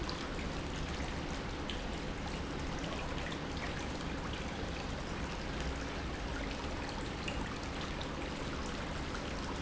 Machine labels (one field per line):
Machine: pump